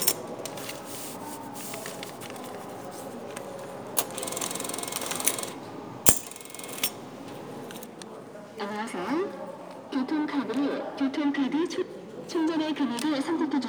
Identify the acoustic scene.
subway station